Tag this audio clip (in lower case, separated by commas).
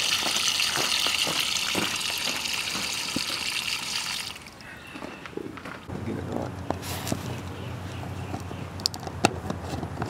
water